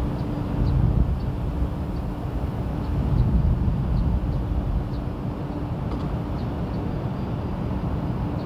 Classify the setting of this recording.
park